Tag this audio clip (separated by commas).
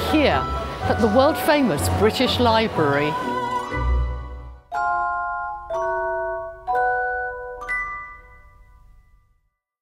Music, Speech